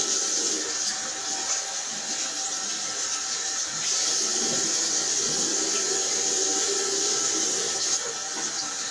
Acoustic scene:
restroom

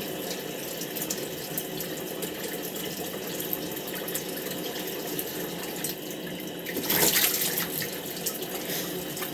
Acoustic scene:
restroom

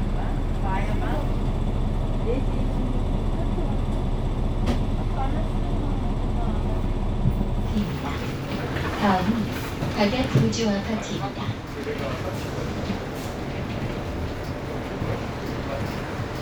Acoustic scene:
bus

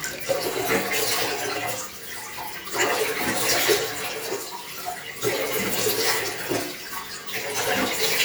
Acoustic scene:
restroom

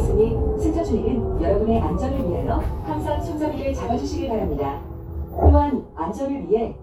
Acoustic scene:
bus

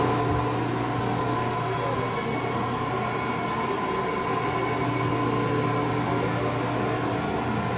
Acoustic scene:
subway train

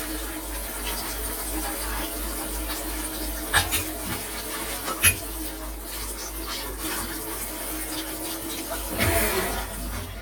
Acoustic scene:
kitchen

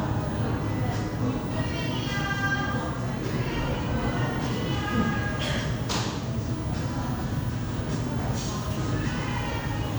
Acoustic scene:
cafe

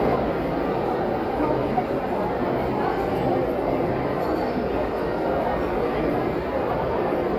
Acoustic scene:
crowded indoor space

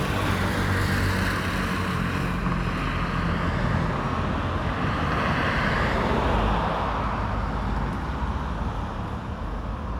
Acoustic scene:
street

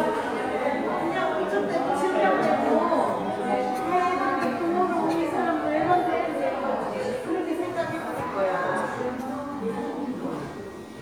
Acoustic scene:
crowded indoor space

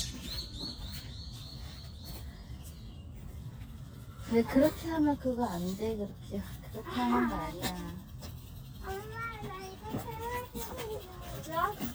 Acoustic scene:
park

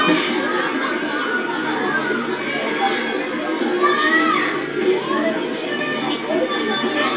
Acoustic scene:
park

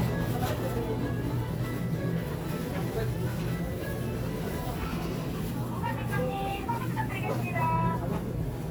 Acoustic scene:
crowded indoor space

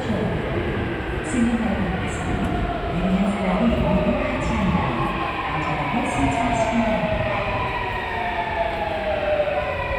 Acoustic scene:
subway station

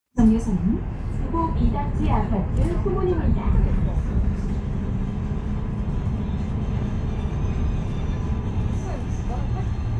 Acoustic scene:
bus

